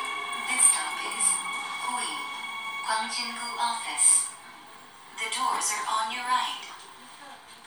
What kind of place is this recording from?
subway train